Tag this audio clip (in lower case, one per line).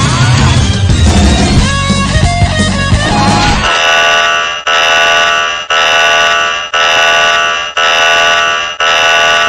music
buzzer